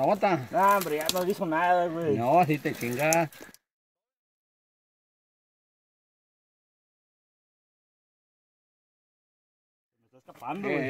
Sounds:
outside, rural or natural
speech

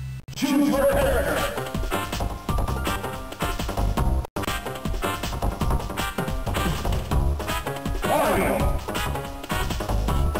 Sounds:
speech

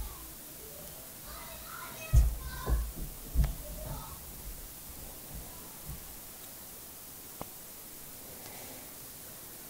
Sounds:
speech

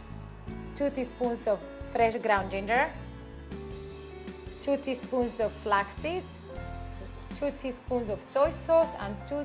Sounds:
speech
music

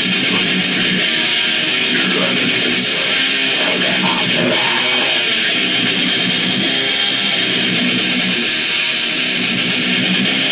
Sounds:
plucked string instrument
music
strum
musical instrument
guitar

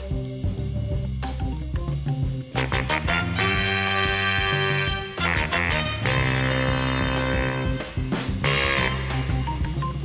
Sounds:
music

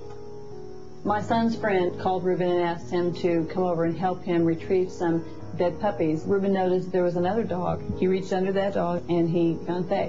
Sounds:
music
speech

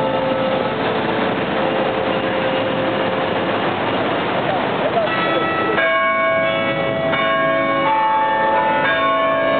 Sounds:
church bell ringing

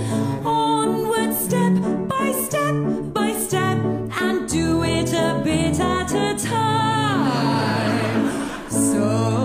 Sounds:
music

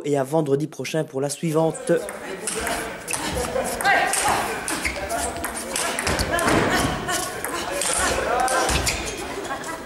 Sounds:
playing table tennis

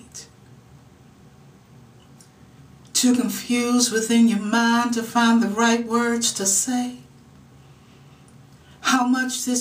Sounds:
speech

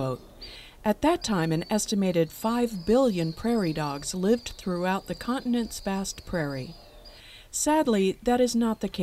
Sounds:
mice

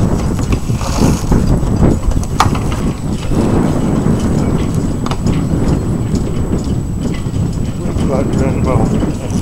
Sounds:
speech

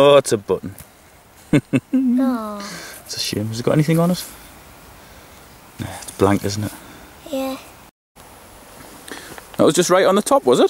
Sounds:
speech

